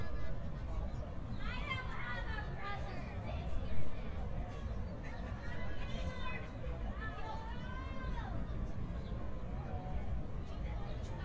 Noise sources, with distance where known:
person or small group shouting, far

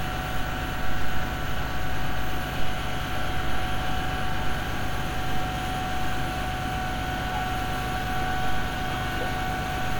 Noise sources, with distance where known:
engine of unclear size, near

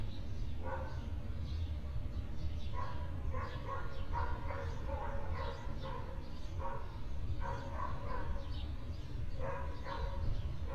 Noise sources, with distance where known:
dog barking or whining

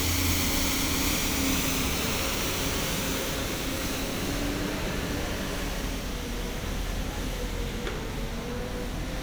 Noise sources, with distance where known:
medium-sounding engine

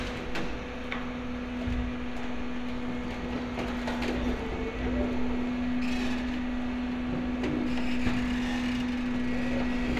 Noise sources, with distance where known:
non-machinery impact, near

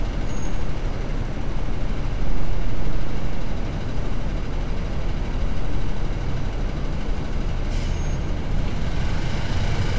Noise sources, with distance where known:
large-sounding engine, near

